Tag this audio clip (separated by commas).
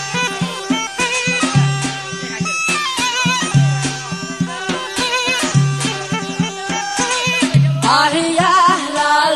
Folk music, Speech, Middle Eastern music, Dance music, Traditional music, Music